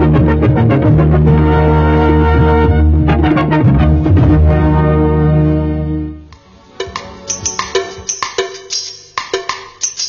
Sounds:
Music, Music of Bollywood

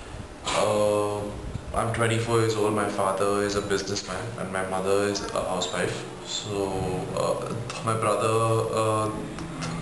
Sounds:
Male speech, Speech, Narration

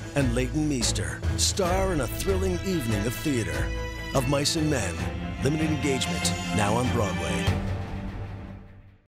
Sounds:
Speech, Music

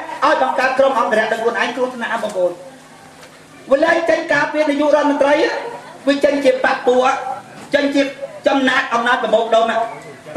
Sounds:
Speech

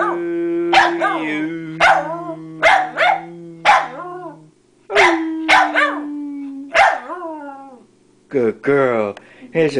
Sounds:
Speech

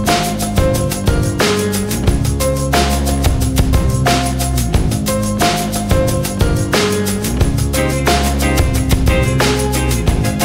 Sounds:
Music

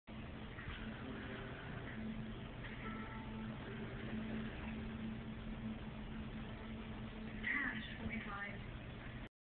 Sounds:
Speech

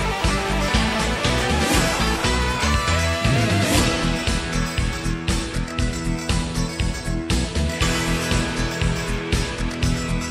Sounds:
Music

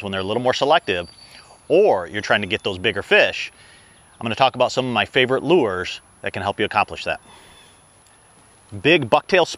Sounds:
Speech

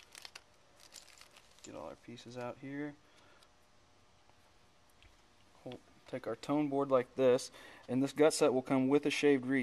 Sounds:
Speech

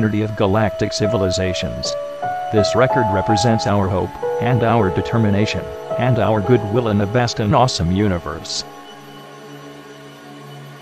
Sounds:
Speech, Music

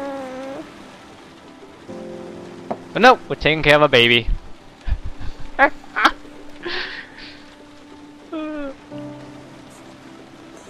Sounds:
Rain, Rain on surface

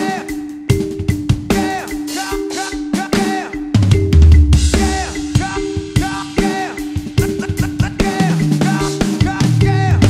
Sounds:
Bass drum, Drum, Drum kit, Snare drum, Rimshot, Percussion

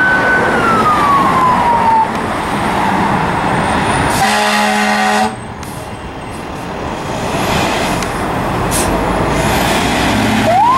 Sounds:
fire truck (siren), Siren, Emergency vehicle

